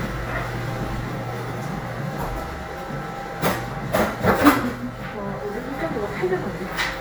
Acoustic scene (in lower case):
crowded indoor space